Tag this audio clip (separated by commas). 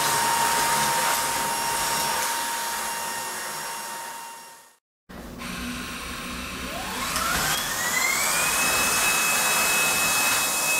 vacuum cleaner cleaning floors